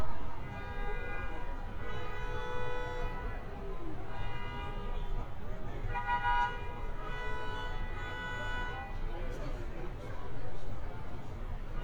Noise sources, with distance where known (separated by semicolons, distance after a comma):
car horn, near